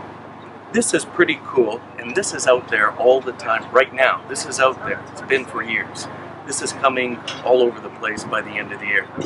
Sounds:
Speech

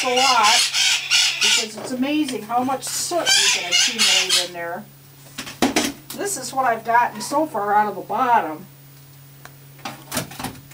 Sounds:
Speech

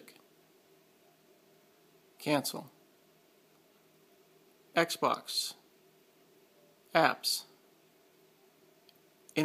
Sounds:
Speech

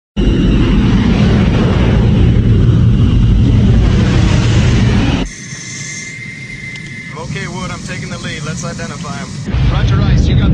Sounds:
Aircraft, Vehicle

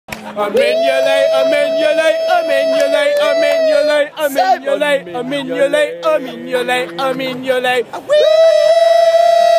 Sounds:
inside a public space

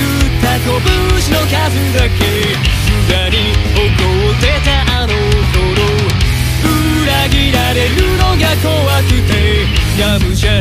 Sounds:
Music

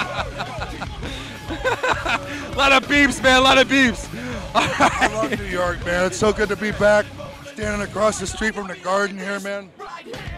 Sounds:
Speech, Music

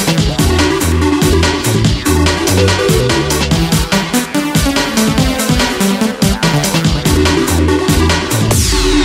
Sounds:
Music, Electronic music, Techno

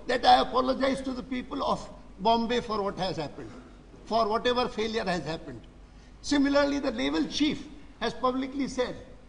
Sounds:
man speaking, Speech, monologue

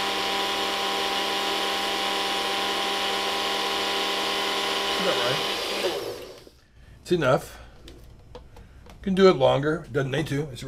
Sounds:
Blender, inside a small room, Speech

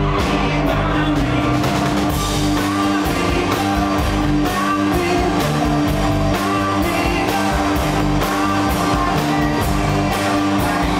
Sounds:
Music

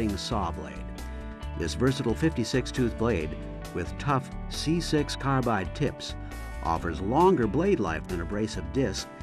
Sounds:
Music, Speech

